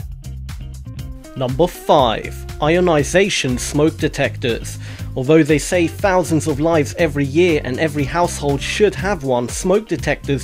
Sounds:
Speech, Music

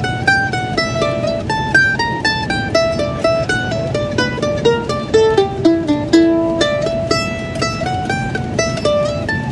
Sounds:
Musical instrument, Mandolin, Plucked string instrument, Music

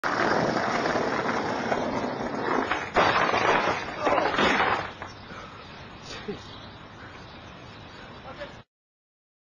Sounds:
Speech

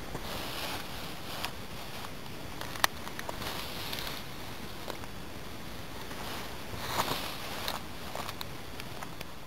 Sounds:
footsteps

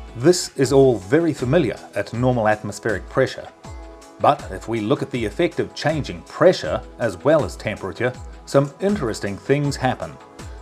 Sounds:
Speech, Music

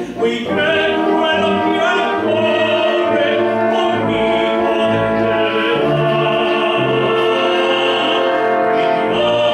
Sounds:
Music, Opera, Orchestra, Classical music

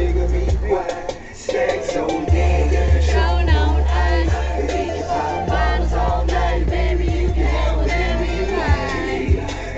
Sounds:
Music

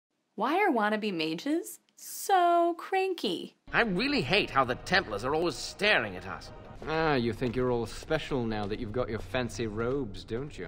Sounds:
Speech, Music

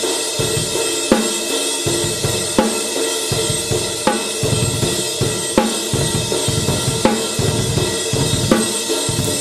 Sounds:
Music, Drum

